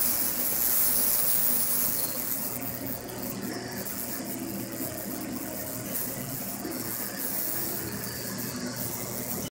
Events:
0.0s-9.5s: boiling
0.0s-9.5s: mechanisms

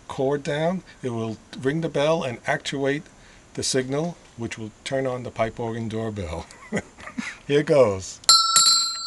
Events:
0.0s-9.0s: background noise
3.0s-3.5s: breathing
6.4s-7.4s: laughter
7.2s-7.4s: human voice
7.5s-8.2s: male speech
8.3s-9.0s: doorbell

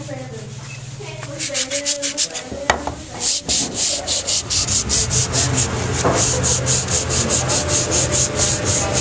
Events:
0.0s-9.0s: conversation
0.0s-9.0s: mechanisms
0.9s-3.8s: woman speaking
3.0s-9.0s: sanding
5.9s-6.2s: generic impact sounds

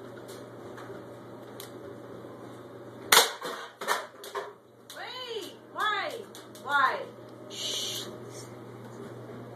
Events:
0.0s-9.5s: mechanisms
0.3s-0.3s: tick
0.7s-0.8s: tick
1.6s-1.7s: tick
3.1s-3.3s: cap gun
3.4s-3.6s: generic impact sounds
3.8s-4.0s: generic impact sounds
4.2s-4.5s: generic impact sounds
4.8s-4.9s: tick
4.9s-5.5s: female speech
5.4s-5.4s: tick
5.7s-6.2s: female speech
5.8s-5.8s: tick
6.0s-6.1s: tick
6.3s-6.4s: tick
6.5s-6.6s: tick
6.6s-7.1s: female speech
7.5s-8.1s: human voice
8.3s-8.5s: human voice

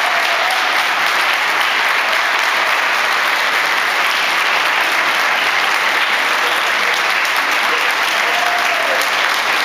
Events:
0.0s-9.6s: applause
8.1s-9.1s: shout

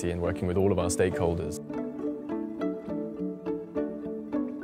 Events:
0.0s-1.6s: man speaking
0.0s-4.6s: music

